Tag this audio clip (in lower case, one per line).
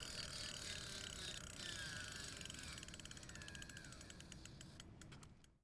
vehicle
bicycle